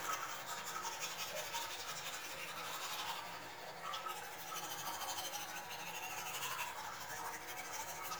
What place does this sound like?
restroom